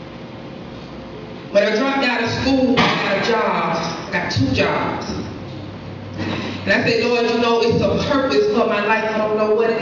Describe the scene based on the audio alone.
A woman is giving a speech